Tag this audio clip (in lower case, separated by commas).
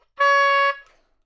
music, woodwind instrument, musical instrument